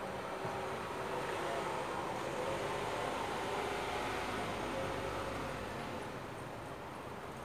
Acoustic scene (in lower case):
residential area